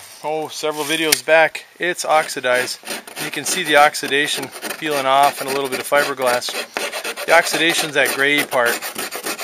An adult male speaks, and scraping and rasping occur